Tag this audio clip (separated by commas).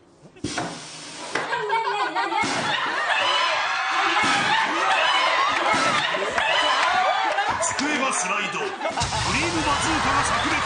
Speech